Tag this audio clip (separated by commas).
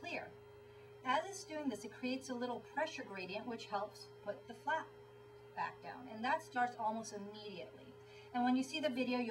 Speech